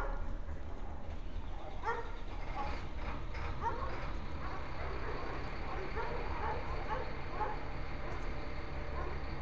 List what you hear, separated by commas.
large-sounding engine, dog barking or whining